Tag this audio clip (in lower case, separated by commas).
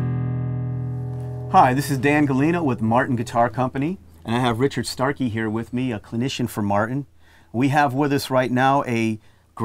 speech, music